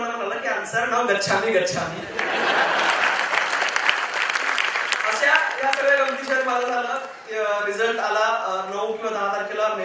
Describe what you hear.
Man speaking followed by laughter, applause and more speaking